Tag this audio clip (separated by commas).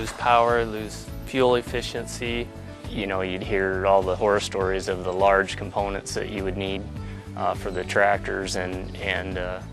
Music, Speech